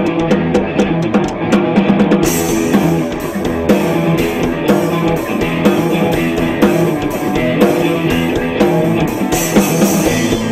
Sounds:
Music

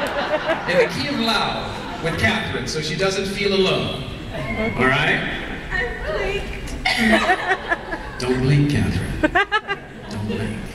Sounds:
Speech, Laughter

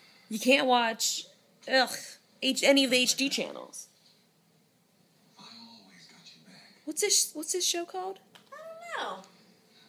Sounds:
Speech

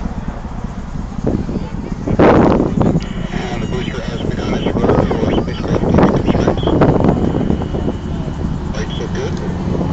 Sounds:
Speech, Wind noise (microphone)

